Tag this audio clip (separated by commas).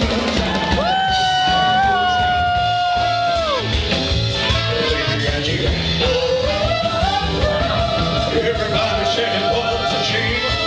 Music, Singing, Rock and roll, Roll